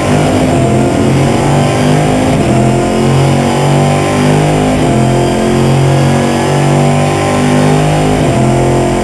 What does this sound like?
Loud vehicle engine running